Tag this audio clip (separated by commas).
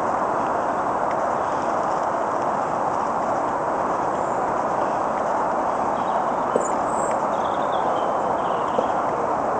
Wind, Bird